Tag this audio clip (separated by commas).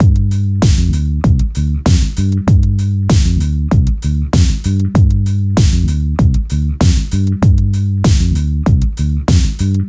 Bass guitar, Guitar, Plucked string instrument, Music, Musical instrument